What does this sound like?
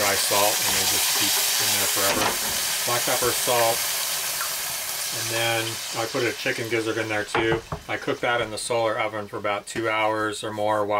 Speech and sizzling